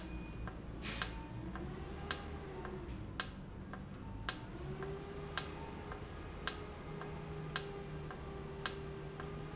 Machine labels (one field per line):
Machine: valve